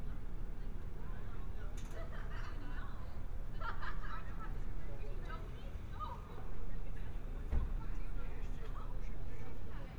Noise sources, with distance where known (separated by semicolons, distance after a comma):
person or small group talking, near